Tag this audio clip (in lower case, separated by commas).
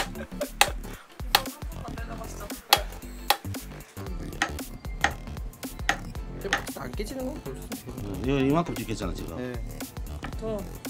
hammering nails